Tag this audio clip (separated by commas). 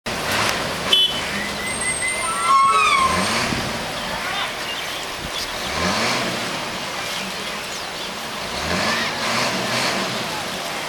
revving, Bus, Vehicle